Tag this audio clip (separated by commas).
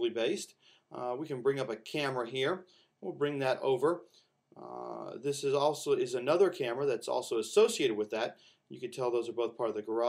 Speech